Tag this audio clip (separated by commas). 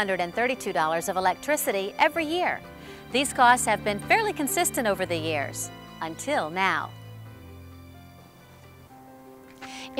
Speech, Music